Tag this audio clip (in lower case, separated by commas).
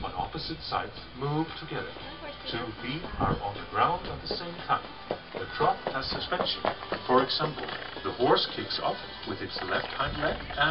horse, speech, music, clip-clop